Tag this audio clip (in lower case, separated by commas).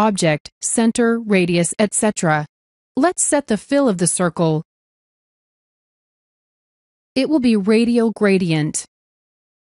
speech